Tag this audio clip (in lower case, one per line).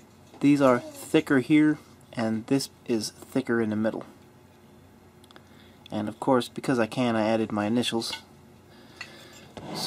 speech